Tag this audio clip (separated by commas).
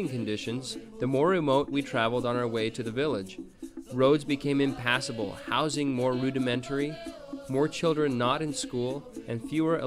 Music, Speech